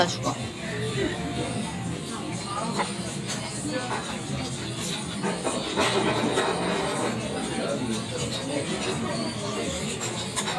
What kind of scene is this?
crowded indoor space